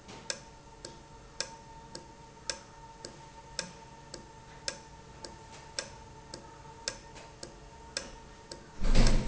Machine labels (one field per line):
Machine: valve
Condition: normal